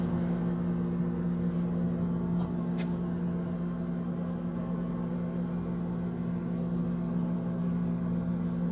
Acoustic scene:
kitchen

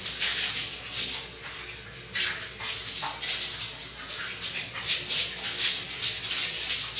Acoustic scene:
restroom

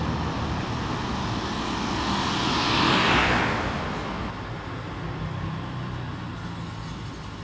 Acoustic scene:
street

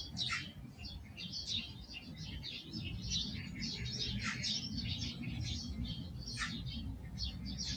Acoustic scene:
park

